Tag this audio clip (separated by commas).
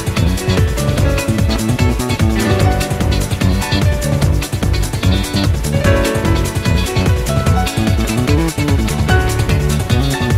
Music